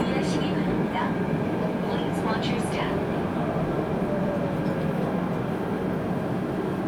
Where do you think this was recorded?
on a subway train